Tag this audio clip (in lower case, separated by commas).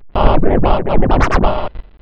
scratching (performance technique), musical instrument, music